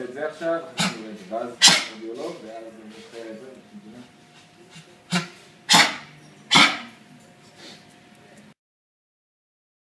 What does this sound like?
A man speaks and an animal coughs